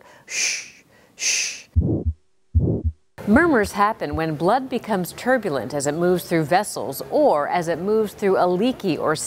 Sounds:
speech, heart murmur, heart sounds

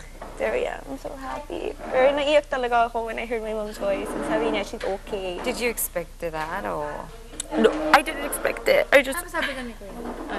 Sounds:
speech

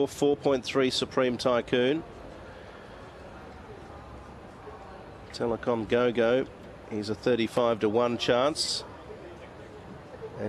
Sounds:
speech

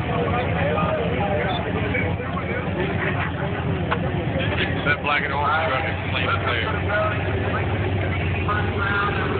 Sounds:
speech, vehicle

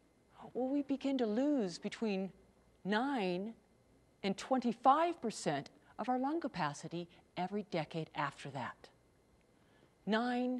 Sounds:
speech

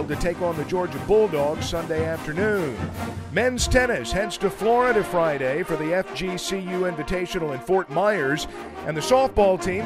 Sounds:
music, speech

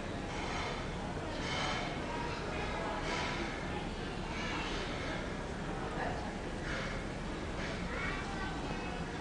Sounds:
speech

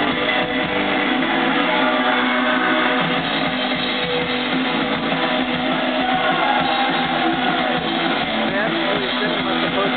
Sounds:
speech, music

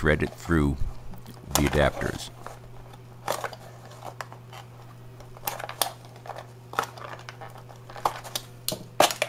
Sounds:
speech

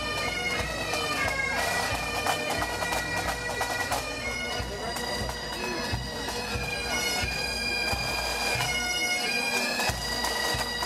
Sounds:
speech, music

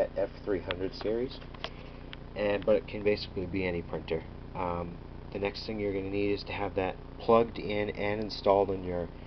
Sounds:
speech

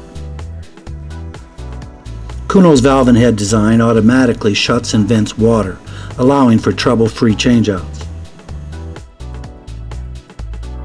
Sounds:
music, speech

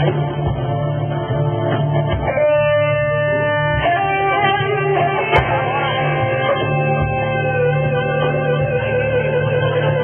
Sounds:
inside a large room or hall, music

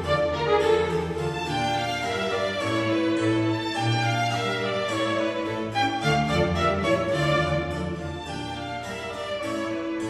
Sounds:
musical instrument, music, violin

